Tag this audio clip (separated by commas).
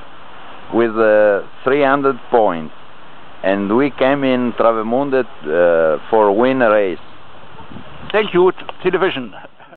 Speech